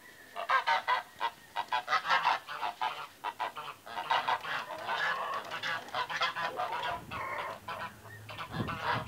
Rain forest noises with large birds squawking